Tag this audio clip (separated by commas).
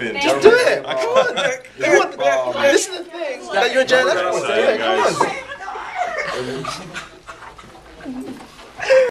Speech